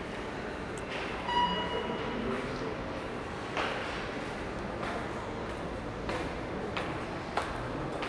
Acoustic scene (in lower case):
subway station